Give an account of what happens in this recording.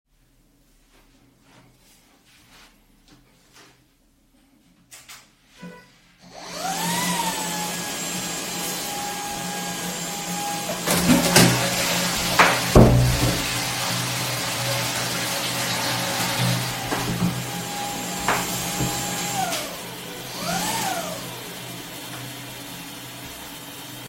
You can hear subtle footsteps at the beginning. Then I turned on the vacuum cleaner, flushed the toilet, and closed the door during flushing. After that the toilet refilled and I turned off the vacuum cleaner.